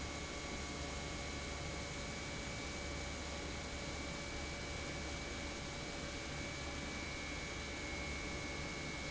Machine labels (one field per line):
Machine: pump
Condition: normal